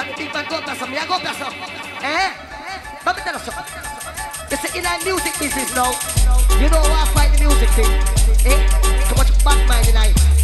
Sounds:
electronic music, music

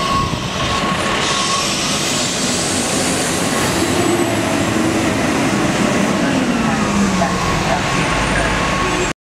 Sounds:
vehicle, truck

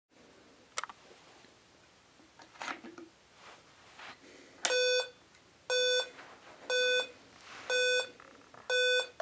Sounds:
inside a small room

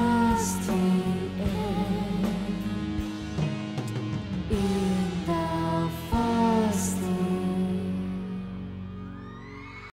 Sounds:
musical instrument, music

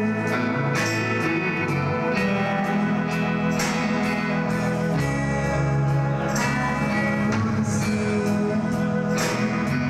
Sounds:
music

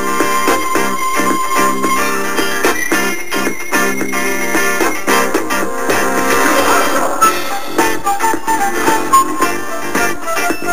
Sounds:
country, music

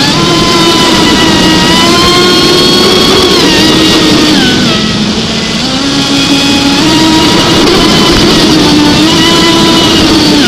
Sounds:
speedboat, water vehicle

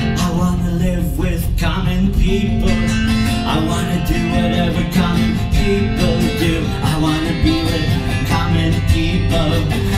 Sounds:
male singing, music

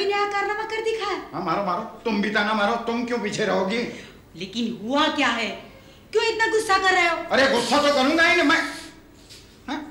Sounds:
woman speaking, speech

